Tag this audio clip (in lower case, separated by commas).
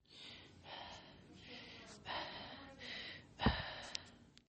respiratory sounds, breathing